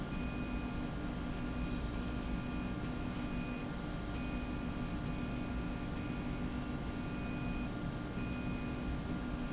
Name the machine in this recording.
slide rail